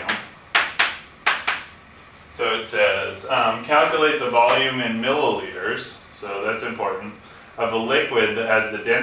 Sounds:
speech

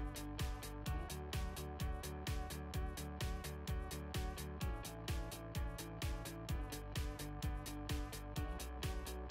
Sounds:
music

